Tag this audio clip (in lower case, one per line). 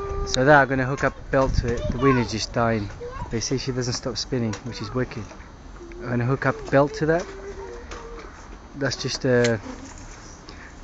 speech